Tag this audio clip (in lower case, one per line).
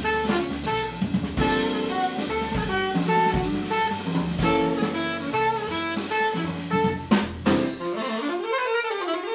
musical instrument
music
woodwind instrument
jazz
saxophone
inside a small room
piano